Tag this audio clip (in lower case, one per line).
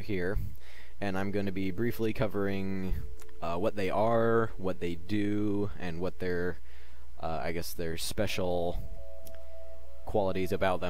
music
speech
inside a small room